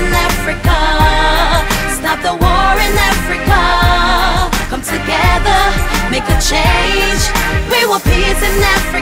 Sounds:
music

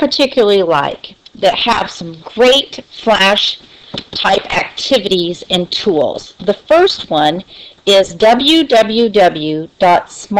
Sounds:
speech

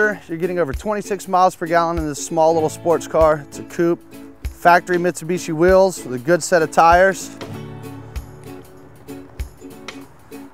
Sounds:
music, speech, footsteps

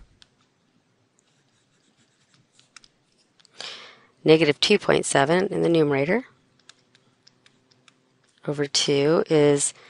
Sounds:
inside a small room, speech

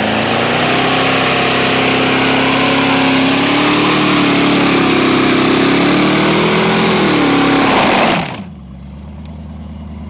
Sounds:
vehicle, car, motor vehicle (road)

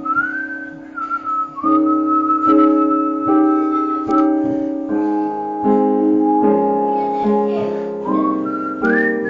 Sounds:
music, whistling

